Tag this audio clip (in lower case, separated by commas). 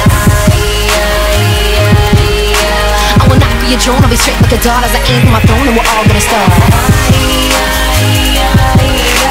dubstep, music, electronic music